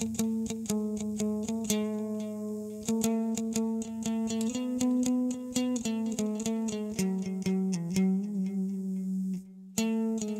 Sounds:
acoustic guitar, music, guitar, musical instrument, plucked string instrument

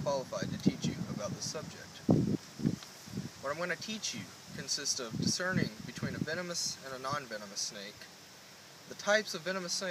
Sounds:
speech, outside, rural or natural, male speech

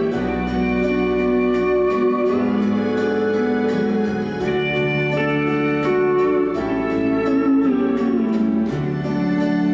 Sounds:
music, musical instrument, guitar, slide guitar

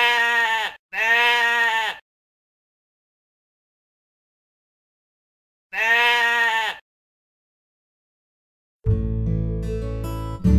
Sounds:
sheep bleating

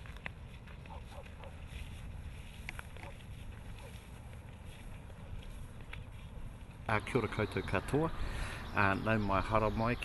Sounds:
speech, walk

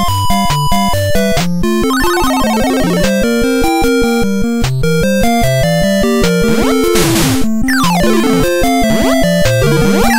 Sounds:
music

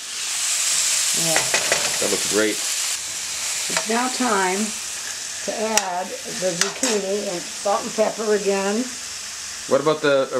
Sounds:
stir, frying (food)

